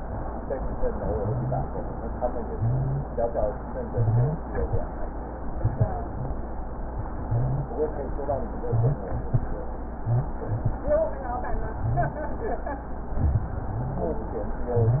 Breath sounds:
1.20-1.63 s: wheeze
2.52-3.06 s: wheeze
3.89-4.42 s: wheeze
7.23-7.76 s: wheeze
8.67-9.05 s: wheeze
9.98-10.36 s: wheeze
11.84-12.22 s: wheeze
13.70-14.08 s: wheeze

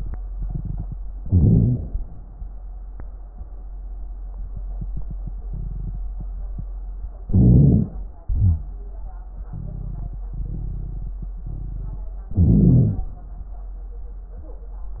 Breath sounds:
1.19-2.02 s: inhalation
1.19-2.02 s: crackles
7.24-8.07 s: inhalation
7.24-8.07 s: crackles
8.21-8.89 s: exhalation
8.21-8.89 s: crackles
12.36-13.04 s: inhalation
12.36-13.04 s: crackles

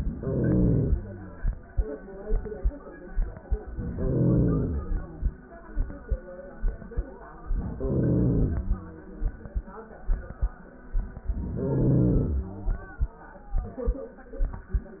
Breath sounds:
0.00-1.39 s: inhalation
3.63-5.25 s: inhalation
7.35-8.97 s: inhalation
11.21-12.57 s: inhalation

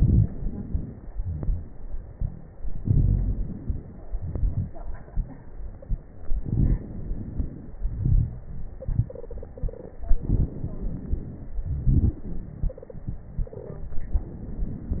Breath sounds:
0.00-1.06 s: inhalation
0.00-1.06 s: crackles
1.10-2.56 s: exhalation
1.10-2.56 s: crackles
2.57-4.04 s: crackles
2.60-4.06 s: inhalation
4.06-6.18 s: exhalation
4.06-6.18 s: crackles
6.20-7.79 s: inhalation
6.20-7.79 s: crackles
7.80-10.01 s: exhalation
8.75-8.93 s: stridor
9.07-10.03 s: stridor
10.00-11.64 s: inhalation
10.00-11.64 s: crackles
11.65-13.81 s: exhalation
12.68-13.03 s: stridor
13.48-13.97 s: stridor
13.80-15.00 s: inhalation

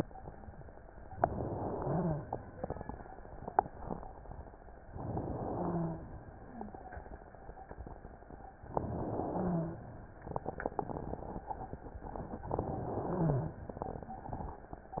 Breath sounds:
1.21-2.30 s: inhalation
1.71-2.22 s: stridor
4.86-5.95 s: inhalation
5.49-5.99 s: stridor
8.74-9.83 s: inhalation
9.33-9.83 s: stridor
12.52-13.60 s: inhalation
13.08-13.58 s: stridor

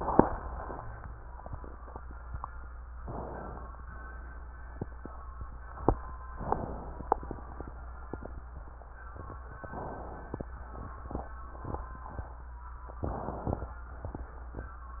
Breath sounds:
3.00-3.80 s: inhalation
6.36-7.16 s: inhalation
9.68-10.47 s: inhalation
12.98-13.78 s: inhalation

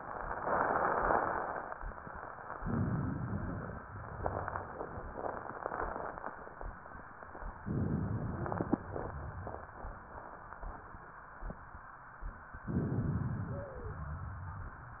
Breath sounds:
2.54-3.82 s: inhalation
7.65-8.80 s: inhalation
7.65-8.80 s: crackles
13.44-14.02 s: wheeze

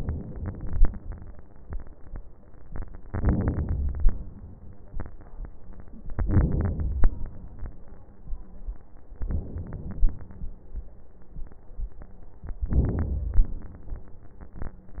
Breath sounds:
0.00-0.93 s: inhalation
3.10-4.27 s: inhalation
6.16-7.13 s: inhalation
9.22-10.19 s: inhalation
12.73-13.67 s: inhalation

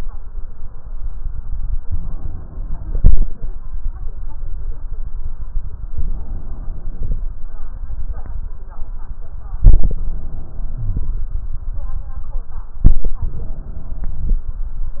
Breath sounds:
1.83-3.44 s: inhalation
1.83-3.46 s: crackles
5.92-7.25 s: inhalation
5.92-7.25 s: crackles
9.58-11.23 s: inhalation
10.79-11.23 s: wheeze
12.87-14.53 s: inhalation
12.87-14.53 s: crackles

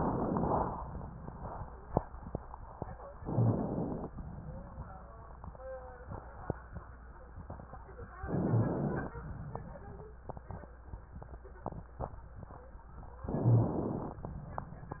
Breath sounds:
3.15-4.10 s: inhalation
3.34-3.54 s: rhonchi
4.11-5.62 s: exhalation
8.25-9.16 s: inhalation
9.13-10.24 s: exhalation
13.24-14.28 s: inhalation
13.24-14.28 s: crackles
13.41-13.66 s: rhonchi

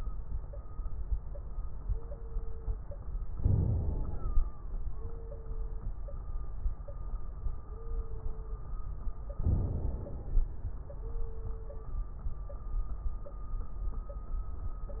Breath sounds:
3.37-4.52 s: inhalation
3.37-4.52 s: crackles
9.38-10.53 s: inhalation
9.38-10.53 s: crackles

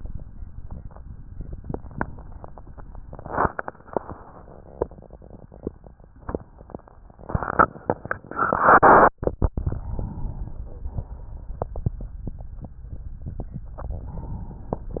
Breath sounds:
9.75-10.94 s: inhalation
13.73-14.92 s: inhalation

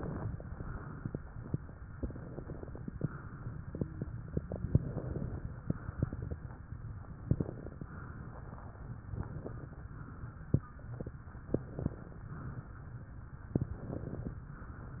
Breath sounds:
0.00-0.39 s: inhalation
0.00-0.39 s: crackles
0.39-1.76 s: exhalation
1.92-3.01 s: inhalation
1.92-3.01 s: crackles
3.02-4.45 s: exhalation
4.53-5.45 s: inhalation
4.53-5.45 s: crackles
5.49-7.16 s: exhalation
7.23-7.88 s: inhalation
7.23-7.88 s: crackles
7.92-9.09 s: exhalation
9.15-9.84 s: inhalation
9.15-9.84 s: crackles
9.94-11.39 s: exhalation
11.52-12.24 s: inhalation
11.52-12.24 s: crackles
12.28-13.50 s: exhalation
13.58-14.40 s: inhalation
13.58-14.40 s: crackles
14.48-15.00 s: exhalation

